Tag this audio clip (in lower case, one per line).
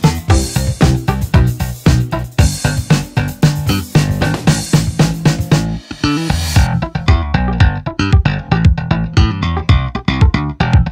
playing bass drum